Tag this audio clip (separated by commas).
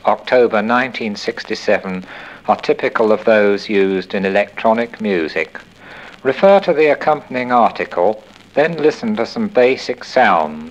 Speech